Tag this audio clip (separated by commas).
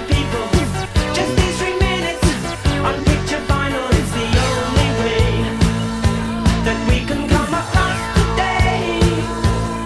Theme music, Music